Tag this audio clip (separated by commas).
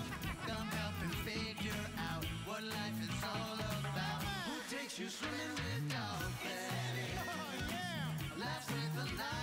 Music